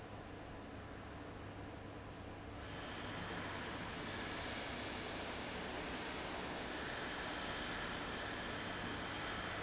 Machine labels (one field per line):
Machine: fan